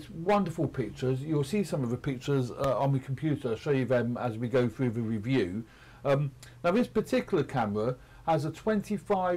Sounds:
speech

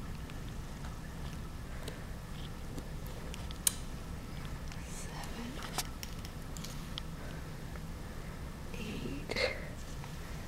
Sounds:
speech

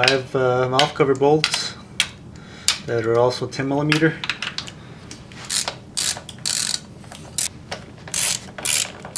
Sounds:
mechanisms

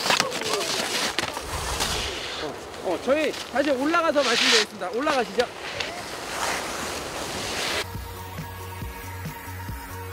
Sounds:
skiing

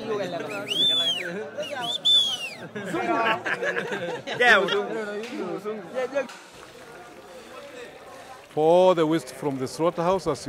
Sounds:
speech

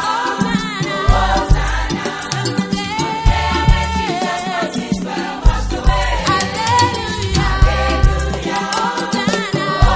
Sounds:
music

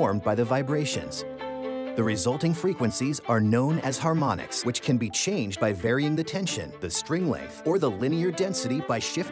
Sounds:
music
speech

